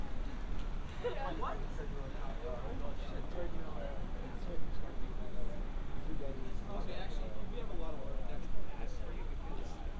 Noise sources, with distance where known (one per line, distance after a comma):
person or small group talking, near